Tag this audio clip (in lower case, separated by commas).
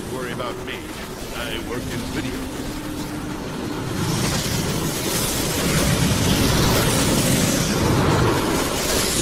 speech, inside a large room or hall